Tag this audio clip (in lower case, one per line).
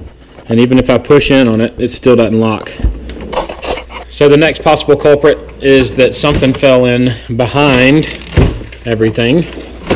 opening or closing drawers